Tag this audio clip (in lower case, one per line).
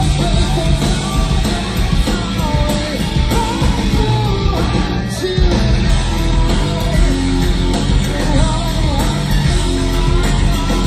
music
rock music